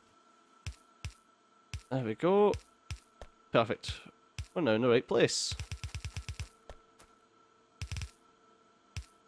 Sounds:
Speech

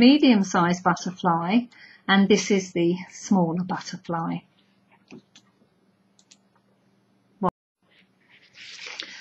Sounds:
inside a small room, Speech

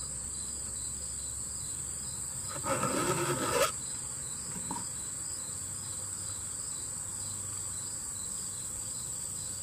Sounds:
Tools, Filing (rasp)

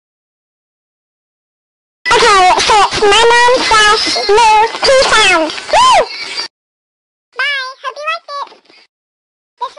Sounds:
Speech

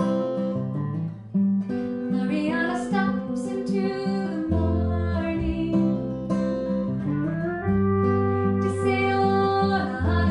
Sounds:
Music, Musical instrument

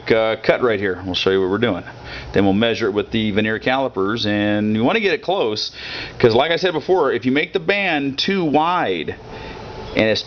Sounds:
Speech

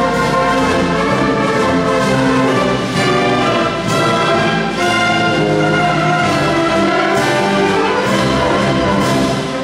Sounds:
Music

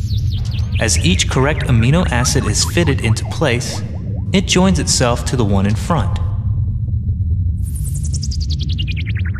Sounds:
Chirp tone

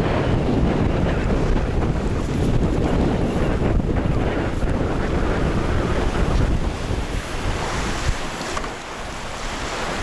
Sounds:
Wind, Wind noise (microphone), sailing, Boat, sailing ship

